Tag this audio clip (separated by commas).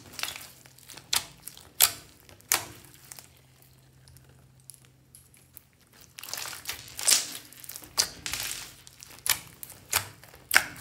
squishing water